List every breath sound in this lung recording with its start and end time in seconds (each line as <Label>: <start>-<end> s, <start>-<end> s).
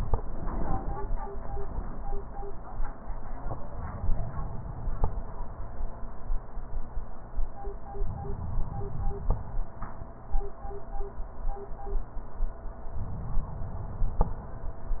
Inhalation: 3.42-5.66 s, 8.02-10.01 s, 12.85-14.65 s